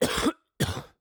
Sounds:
cough, respiratory sounds

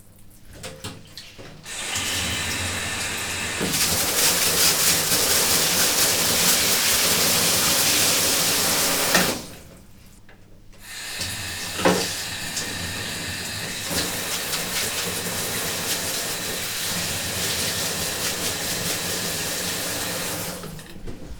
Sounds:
bathtub (filling or washing), home sounds

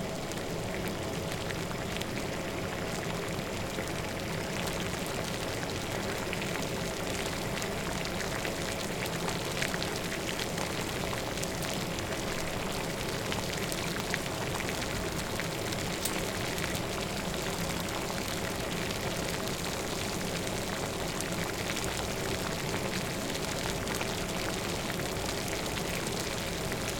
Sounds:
liquid, boiling

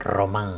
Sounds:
human voice

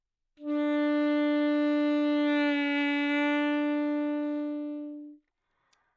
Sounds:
musical instrument, woodwind instrument, music

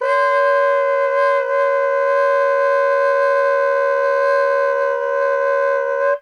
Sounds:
musical instrument, wind instrument, music

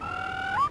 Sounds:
bird, wild animals, animal

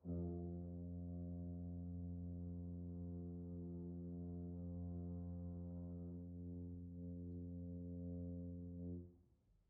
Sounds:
music, brass instrument, musical instrument

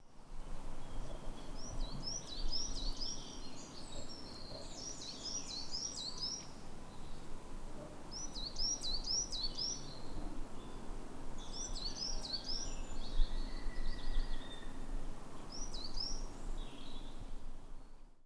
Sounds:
bird, bird call, wild animals, animal

